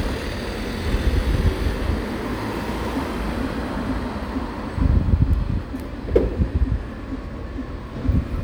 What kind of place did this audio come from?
street